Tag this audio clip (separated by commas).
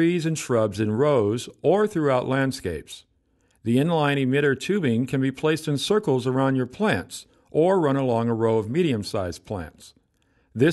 Speech